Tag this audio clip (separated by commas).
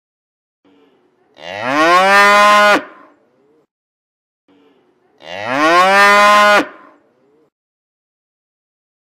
cow lowing